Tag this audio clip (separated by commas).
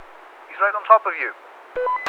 Human voice, man speaking, Speech